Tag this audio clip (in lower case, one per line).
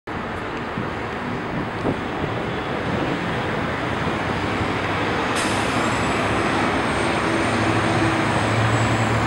traffic noise
vehicle